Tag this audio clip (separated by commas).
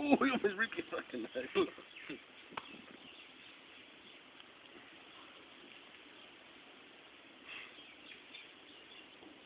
Speech